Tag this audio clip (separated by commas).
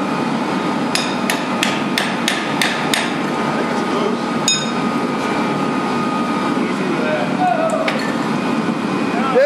Aircraft